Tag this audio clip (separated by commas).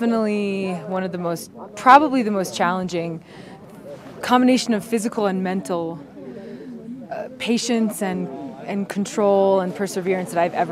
Speech